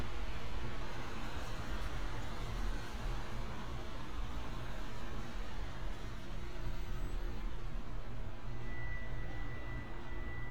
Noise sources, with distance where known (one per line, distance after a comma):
engine of unclear size